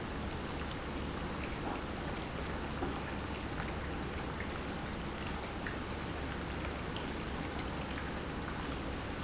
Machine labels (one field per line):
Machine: pump